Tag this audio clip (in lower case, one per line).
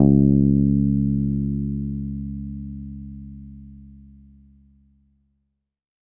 guitar
bass guitar
plucked string instrument
music
musical instrument